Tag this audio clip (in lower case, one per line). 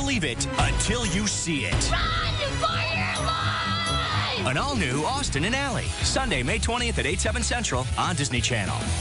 speech
music